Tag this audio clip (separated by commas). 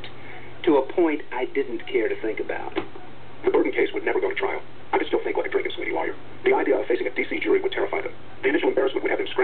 Male speech, Speech synthesizer, Speech